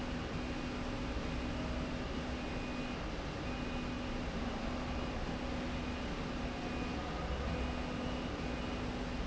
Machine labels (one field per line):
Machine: slide rail